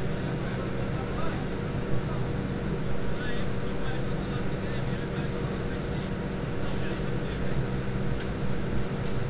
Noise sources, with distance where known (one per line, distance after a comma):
unidentified human voice